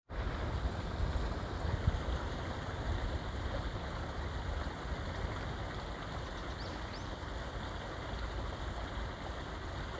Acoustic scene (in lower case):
park